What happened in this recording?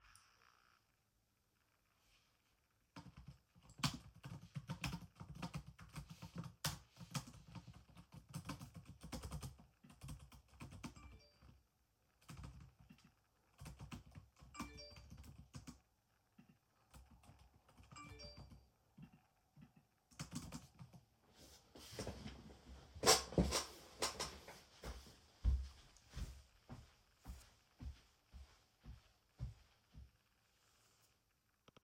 I was sitting in my chair, typing on my laptop keyboard. While I was doing that, I received three messages. I stood up and went to my charging smartphone.